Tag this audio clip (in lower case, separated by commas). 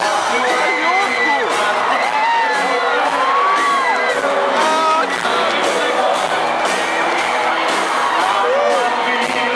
pop music, music